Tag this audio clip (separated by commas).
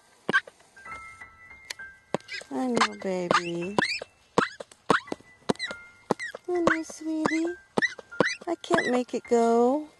Speech, Duck, Quack, Music